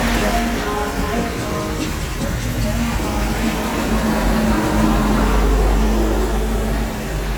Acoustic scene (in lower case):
street